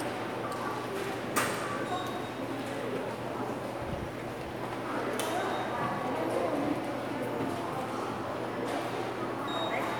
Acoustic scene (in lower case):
subway station